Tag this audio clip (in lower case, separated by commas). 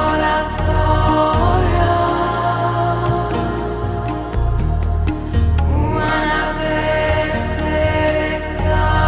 song, mantra, new-age music, music